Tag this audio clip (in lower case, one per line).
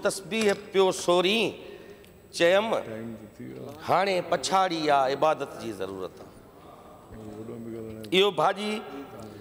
speech
man speaking
monologue